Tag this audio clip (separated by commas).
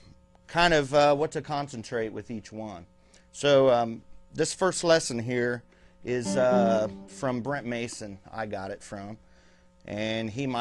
Guitar, Musical instrument, Speech, Music